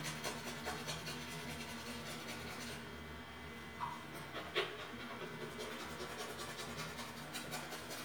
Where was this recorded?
in a restroom